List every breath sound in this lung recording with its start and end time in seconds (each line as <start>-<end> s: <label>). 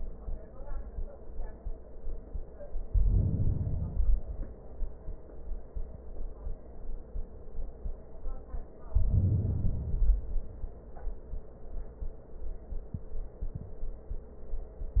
2.77-3.98 s: inhalation
4.00-5.21 s: exhalation
8.83-9.74 s: inhalation
9.74-10.92 s: exhalation